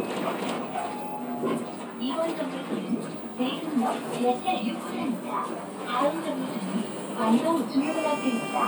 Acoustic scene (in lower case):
bus